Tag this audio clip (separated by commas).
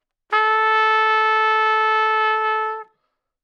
Trumpet, Musical instrument, Brass instrument, Music